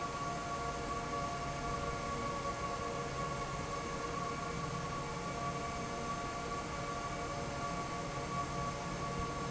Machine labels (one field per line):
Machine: fan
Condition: normal